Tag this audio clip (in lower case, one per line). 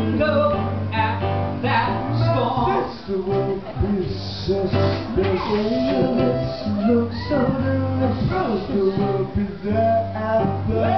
music